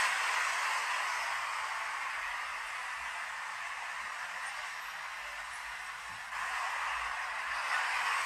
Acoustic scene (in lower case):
street